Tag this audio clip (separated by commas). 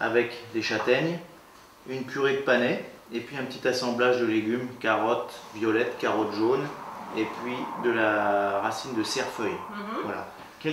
Speech